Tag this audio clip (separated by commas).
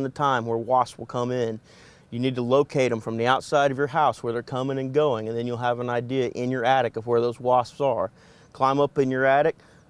Speech